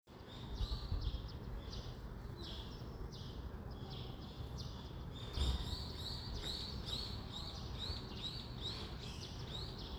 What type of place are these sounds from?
residential area